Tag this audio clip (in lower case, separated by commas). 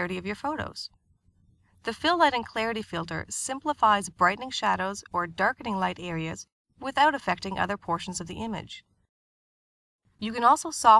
speech